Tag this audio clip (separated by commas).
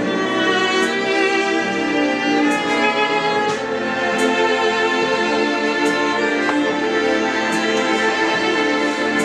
Musical instrument, fiddle, Music